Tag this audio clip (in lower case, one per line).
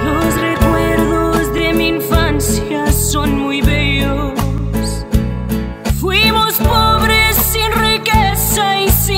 music